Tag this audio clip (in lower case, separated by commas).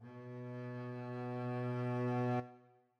music, bowed string instrument, musical instrument